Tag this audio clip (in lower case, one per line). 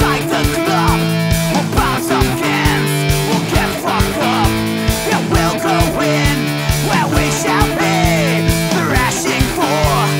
music